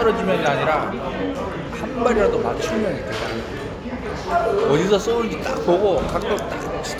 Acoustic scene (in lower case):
restaurant